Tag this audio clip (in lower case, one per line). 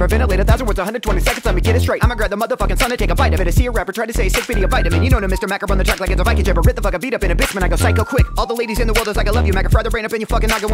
rapping